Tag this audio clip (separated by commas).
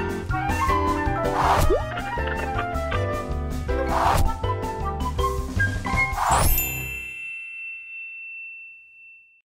Mallet percussion, xylophone, Glockenspiel